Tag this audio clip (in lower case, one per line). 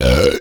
burping